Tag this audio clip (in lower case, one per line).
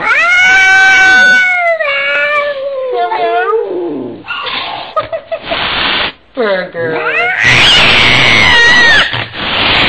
speech
pets
animal
cat